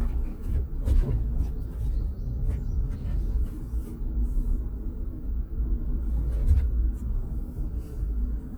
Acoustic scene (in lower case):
car